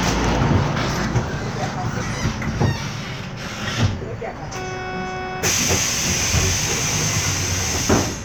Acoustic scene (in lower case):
bus